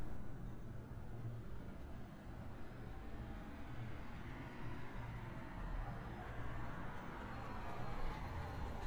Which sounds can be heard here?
medium-sounding engine